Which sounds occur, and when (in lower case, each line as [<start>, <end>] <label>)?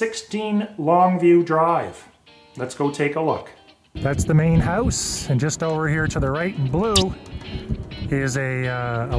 [0.00, 0.68] man speaking
[0.00, 9.15] music
[0.80, 1.96] man speaking
[2.57, 3.47] man speaking
[3.90, 7.17] man speaking
[3.94, 9.15] wind
[3.96, 4.87] wind noise (microphone)
[6.93, 7.06] squeak
[7.31, 8.15] wind noise (microphone)
[8.12, 9.15] man speaking